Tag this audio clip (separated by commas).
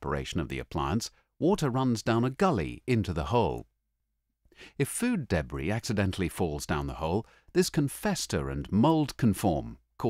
Speech